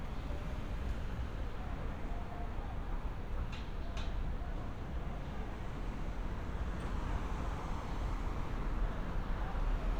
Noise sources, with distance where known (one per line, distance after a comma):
medium-sounding engine
person or small group shouting, far